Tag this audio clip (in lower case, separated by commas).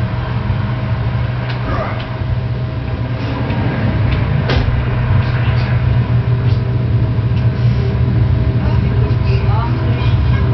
outside, urban or man-made, speech